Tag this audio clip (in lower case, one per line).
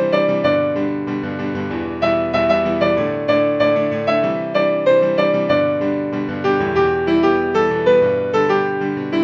music